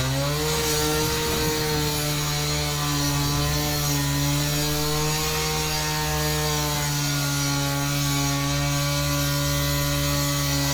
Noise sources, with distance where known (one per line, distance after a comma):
unidentified powered saw